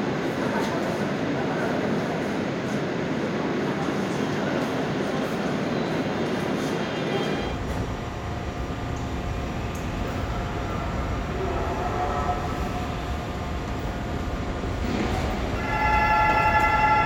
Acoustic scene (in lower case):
subway station